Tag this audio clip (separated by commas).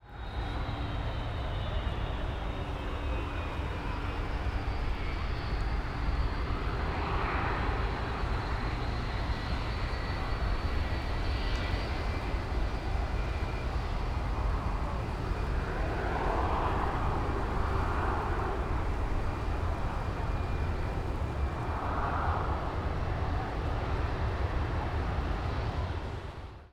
Vehicle, Aircraft